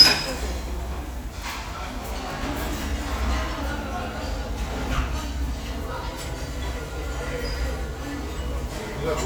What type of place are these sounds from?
restaurant